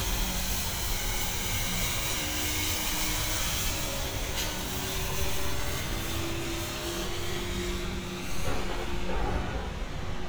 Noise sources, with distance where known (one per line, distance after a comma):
unidentified impact machinery